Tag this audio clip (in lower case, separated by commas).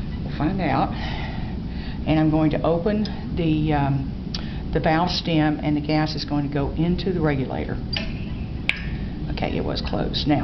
speech, inside a large room or hall